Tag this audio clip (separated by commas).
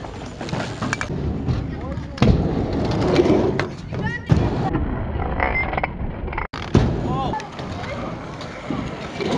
Speech